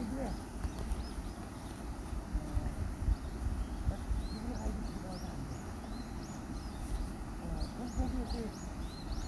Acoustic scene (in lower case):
park